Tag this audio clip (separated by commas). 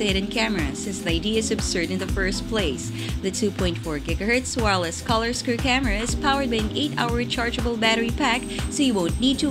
Music, Speech